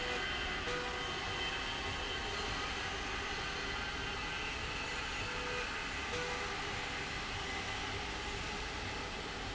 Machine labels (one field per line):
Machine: slide rail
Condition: normal